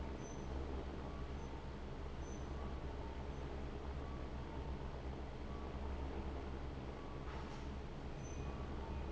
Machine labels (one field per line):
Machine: fan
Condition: abnormal